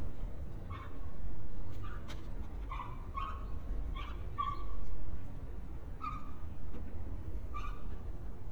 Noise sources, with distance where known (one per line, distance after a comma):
dog barking or whining, near